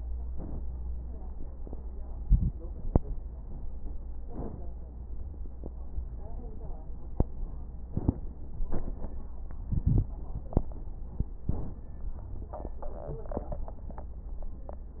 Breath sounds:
0.24-0.83 s: inhalation
0.24-0.83 s: crackles
4.20-4.79 s: inhalation
4.20-4.79 s: crackles
7.78-8.37 s: inhalation
7.78-8.37 s: crackles
11.47-12.06 s: inhalation
11.47-12.06 s: crackles
12.13-12.72 s: wheeze

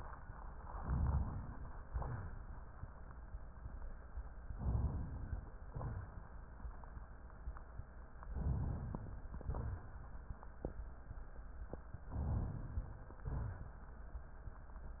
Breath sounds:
0.59-1.78 s: inhalation
1.85-2.47 s: exhalation
4.54-5.52 s: inhalation
5.70-6.36 s: exhalation
8.29-9.19 s: inhalation
8.29-9.19 s: crackles
9.37-10.02 s: exhalation
12.09-13.20 s: inhalation
13.24-13.91 s: exhalation

